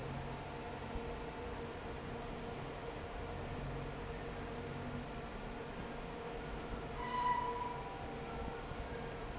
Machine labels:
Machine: fan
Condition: normal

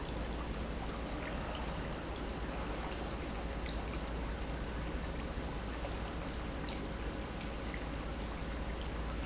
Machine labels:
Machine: pump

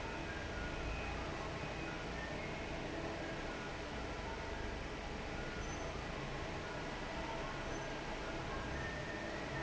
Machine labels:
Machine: fan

